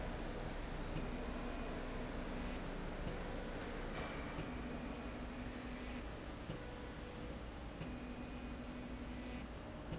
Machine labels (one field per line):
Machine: slide rail